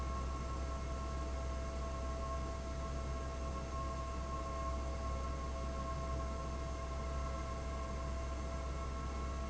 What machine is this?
fan